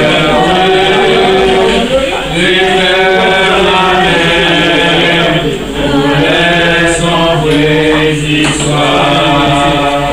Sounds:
male singing

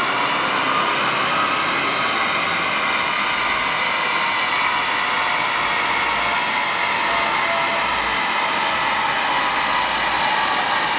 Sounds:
car
medium engine (mid frequency)
engine
vehicle

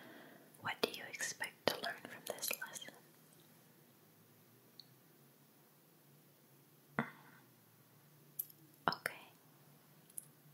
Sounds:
speech

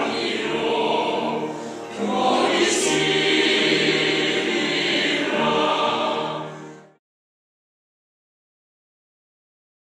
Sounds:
music
gospel music

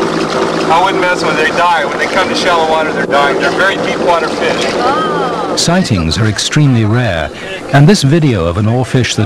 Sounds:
speech
outside, rural or natural

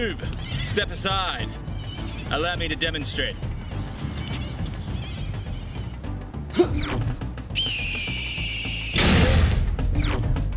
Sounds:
music
speech

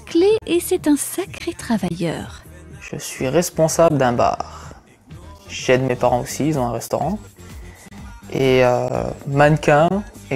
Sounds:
speech
music

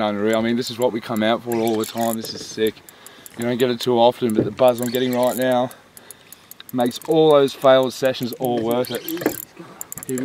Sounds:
speech

